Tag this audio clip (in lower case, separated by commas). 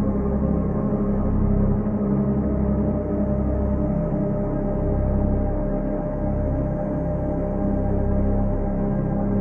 music, ambient music